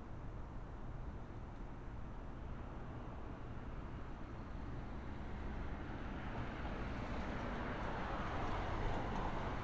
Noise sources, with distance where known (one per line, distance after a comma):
medium-sounding engine